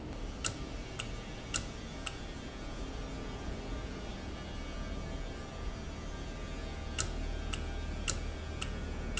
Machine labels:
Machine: valve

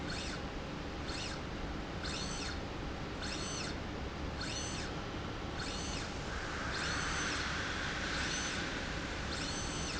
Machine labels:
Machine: slide rail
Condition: normal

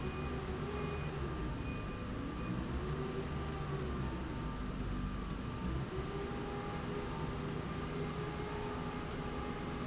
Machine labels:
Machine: slide rail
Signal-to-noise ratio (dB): -6 dB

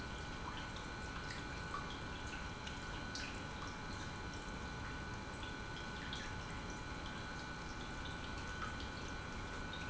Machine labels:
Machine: pump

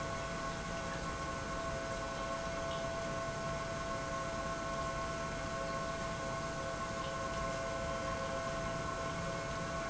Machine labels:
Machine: pump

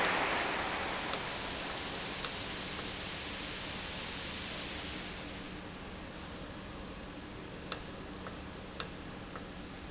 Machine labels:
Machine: valve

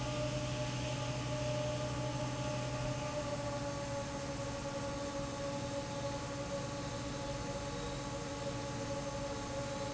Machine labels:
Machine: fan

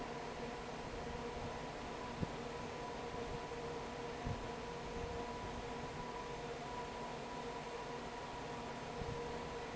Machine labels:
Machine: fan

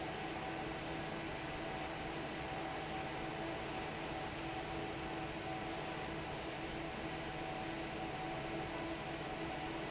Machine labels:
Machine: fan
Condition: normal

